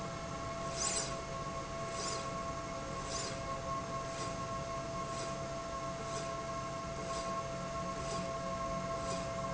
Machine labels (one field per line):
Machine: slide rail